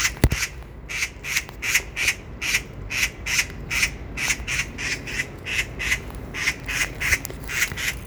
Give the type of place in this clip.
park